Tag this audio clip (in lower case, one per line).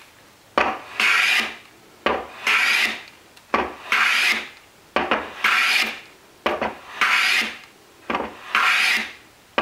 wood
filing (rasp)
rub